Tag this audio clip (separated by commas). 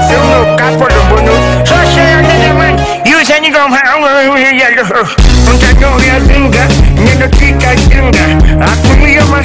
Music, Song, Afrobeat